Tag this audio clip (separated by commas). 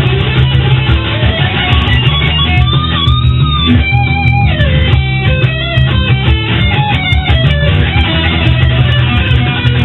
Musical instrument, Guitar, Electric guitar, Plucked string instrument, Music, Strum